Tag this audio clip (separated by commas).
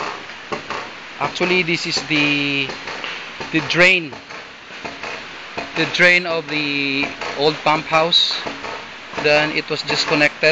Speech